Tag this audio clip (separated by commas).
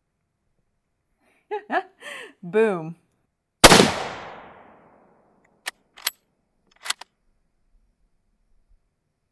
Speech, machine gun shooting, Machine gun